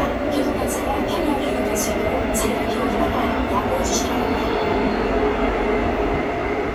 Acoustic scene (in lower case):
subway train